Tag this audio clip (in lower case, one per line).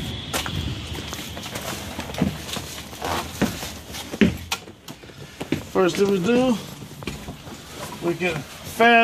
speech